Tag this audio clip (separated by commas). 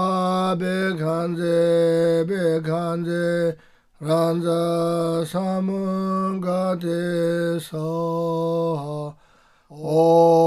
Mantra